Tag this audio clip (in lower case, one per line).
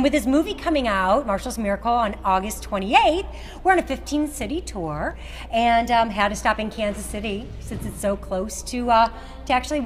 speech